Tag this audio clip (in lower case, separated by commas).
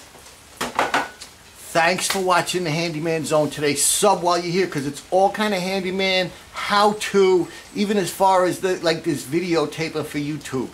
inside a small room, speech